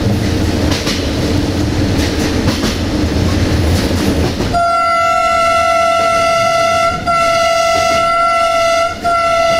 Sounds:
rail transport, vehicle, train horn, train, train whistle, railroad car

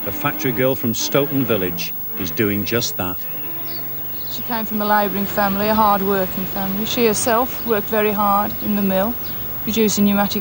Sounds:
speech, music

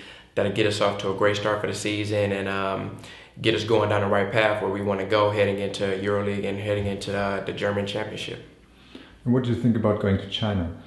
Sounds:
speech

